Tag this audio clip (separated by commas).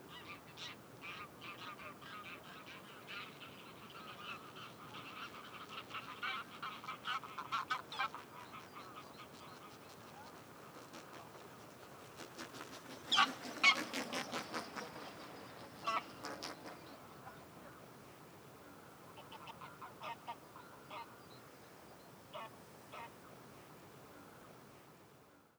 Fowl, livestock, Animal